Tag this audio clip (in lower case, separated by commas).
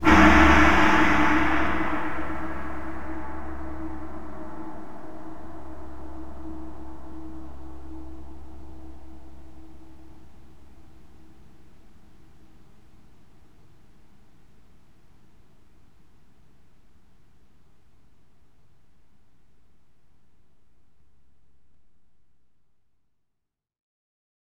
musical instrument, percussion, gong, music